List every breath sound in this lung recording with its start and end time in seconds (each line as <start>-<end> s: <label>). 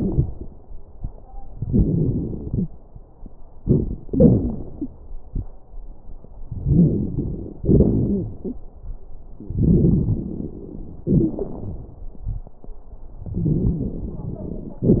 0.00-0.51 s: inhalation
0.00-0.51 s: crackles
1.58-2.67 s: exhalation
1.58-2.67 s: crackles
3.59-4.05 s: inhalation
3.59-4.05 s: crackles
4.07-4.59 s: wheeze
4.07-4.95 s: exhalation
4.76-4.92 s: wheeze
6.52-7.57 s: inhalation
6.52-7.57 s: crackles
7.58-8.63 s: exhalation
7.58-8.63 s: crackles
9.39-11.02 s: inhalation
9.39-11.02 s: crackles
11.09-12.09 s: exhalation
11.09-12.09 s: crackles
13.26-14.80 s: crackles
13.27-14.84 s: inhalation
14.84-15.00 s: exhalation
14.84-15.00 s: crackles